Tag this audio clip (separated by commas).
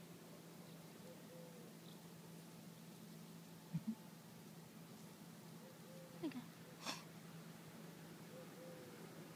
Speech, Mouse